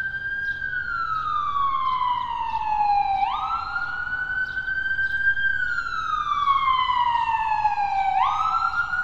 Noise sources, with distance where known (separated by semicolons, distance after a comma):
siren, near